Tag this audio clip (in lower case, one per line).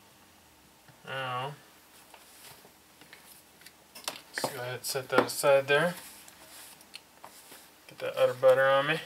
speech